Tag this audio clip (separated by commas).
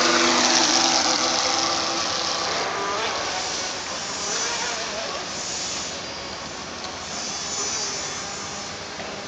Motorboat, Boat